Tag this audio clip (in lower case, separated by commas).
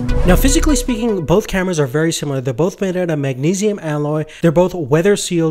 music, speech